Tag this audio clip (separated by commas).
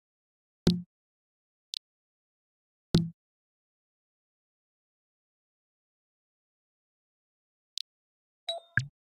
Vehicle, Car